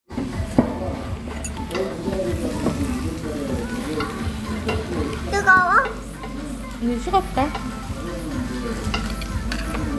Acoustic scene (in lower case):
restaurant